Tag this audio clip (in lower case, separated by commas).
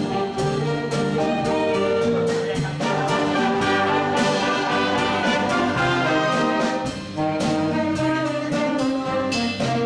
music, jazz